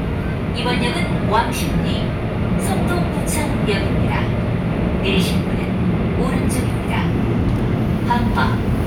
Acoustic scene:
subway train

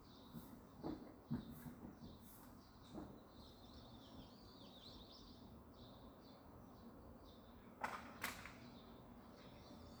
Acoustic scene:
park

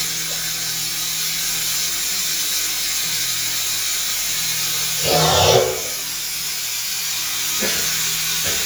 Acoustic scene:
restroom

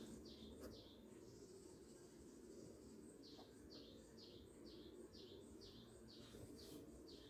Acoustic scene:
park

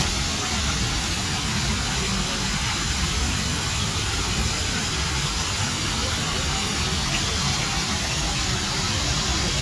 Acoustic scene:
park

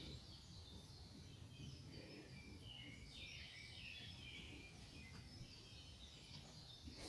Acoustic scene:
park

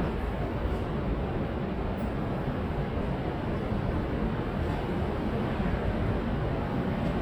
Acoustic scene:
subway station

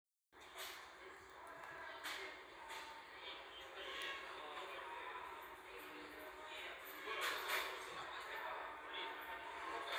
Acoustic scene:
crowded indoor space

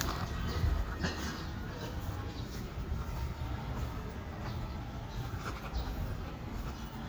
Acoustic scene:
park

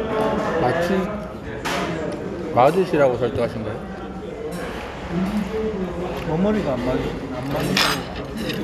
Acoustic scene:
restaurant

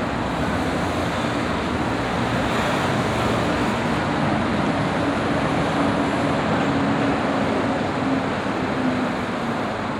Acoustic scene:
street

